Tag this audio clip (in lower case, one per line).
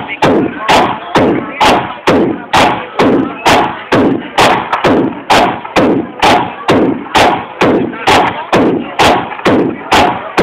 speech
music